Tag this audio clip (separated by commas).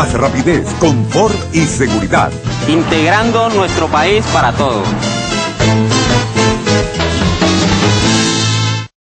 Music, Speech